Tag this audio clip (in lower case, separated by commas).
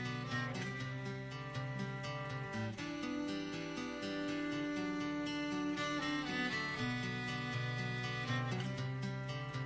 cello, musical instrument, music